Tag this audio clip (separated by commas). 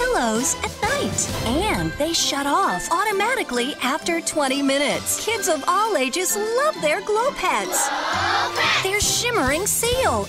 Jingle (music), Speech, Music